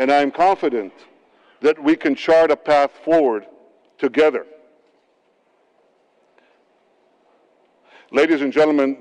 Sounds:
Speech, man speaking

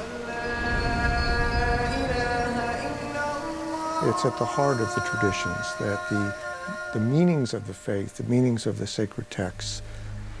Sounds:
Music, Speech

